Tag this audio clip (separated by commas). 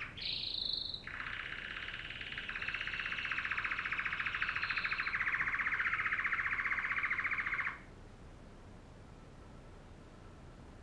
canary calling